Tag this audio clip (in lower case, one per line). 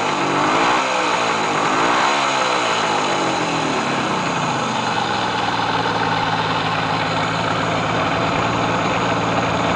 vehicle
motorcycle